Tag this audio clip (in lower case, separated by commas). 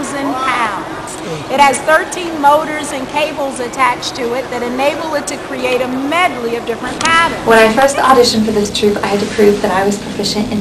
speech